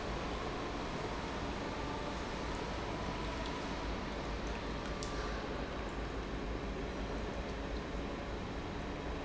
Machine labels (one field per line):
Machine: pump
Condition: normal